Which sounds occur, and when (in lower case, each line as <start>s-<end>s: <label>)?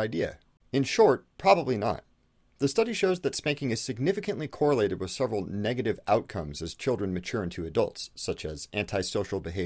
0.0s-0.4s: man speaking
0.0s-9.6s: background noise
0.7s-1.2s: man speaking
1.4s-2.0s: man speaking
2.6s-9.6s: man speaking